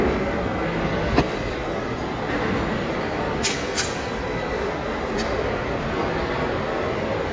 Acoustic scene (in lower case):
crowded indoor space